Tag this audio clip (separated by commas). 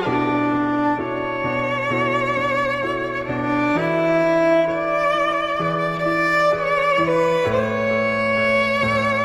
Music, Violin